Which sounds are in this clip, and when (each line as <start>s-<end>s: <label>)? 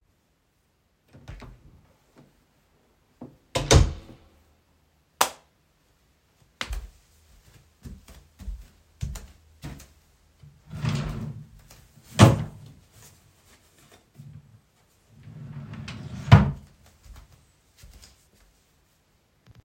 1.2s-1.6s: door
3.1s-4.3s: door
5.1s-5.4s: light switch
6.6s-7.0s: footsteps
7.8s-9.9s: footsteps
10.6s-11.6s: wardrobe or drawer
15.1s-16.7s: wardrobe or drawer
17.0s-18.3s: footsteps